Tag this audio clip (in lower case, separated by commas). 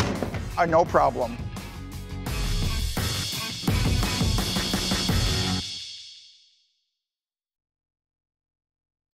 music, speech